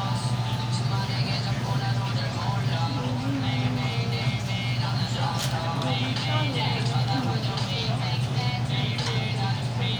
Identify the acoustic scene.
restaurant